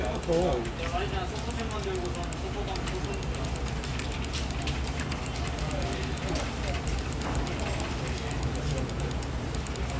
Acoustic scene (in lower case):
crowded indoor space